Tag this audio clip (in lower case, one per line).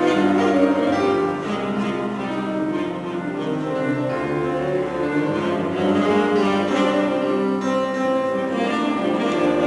music
classical music